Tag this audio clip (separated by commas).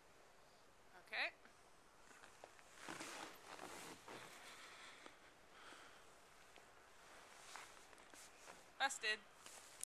Speech